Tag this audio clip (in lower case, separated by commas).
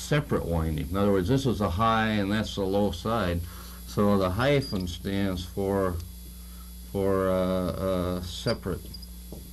speech, inside a small room